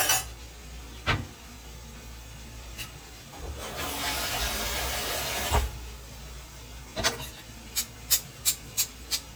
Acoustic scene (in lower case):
kitchen